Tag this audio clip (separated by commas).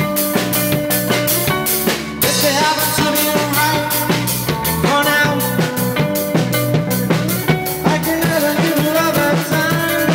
Music, Roll